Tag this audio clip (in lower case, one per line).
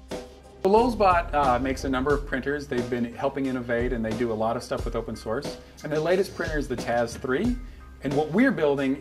speech
music